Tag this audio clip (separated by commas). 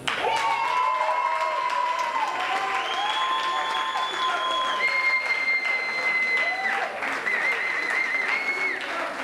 Speech